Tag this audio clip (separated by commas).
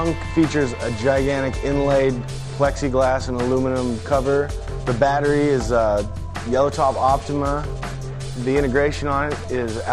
Speech, Music